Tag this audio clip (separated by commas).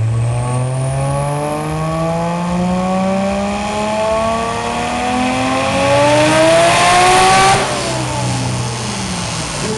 Vehicle, revving, Engine, Car